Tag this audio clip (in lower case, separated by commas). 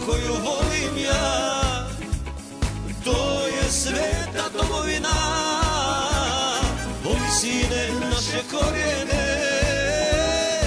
music, folk music